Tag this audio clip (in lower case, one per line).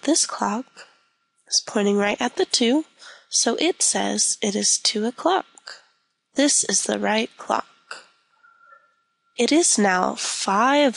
speech